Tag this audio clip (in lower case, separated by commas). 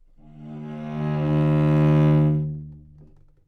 bowed string instrument, musical instrument, music